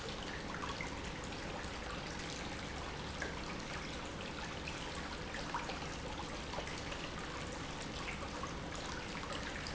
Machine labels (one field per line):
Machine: pump